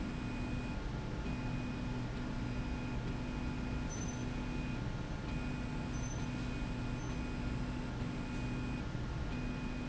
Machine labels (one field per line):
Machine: slide rail